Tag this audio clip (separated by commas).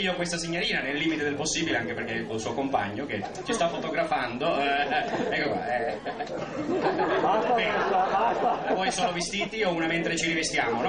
Speech